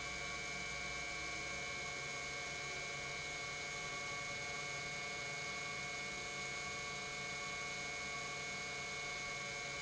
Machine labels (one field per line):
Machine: pump